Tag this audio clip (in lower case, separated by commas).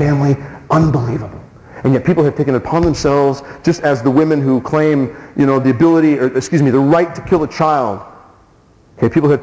speech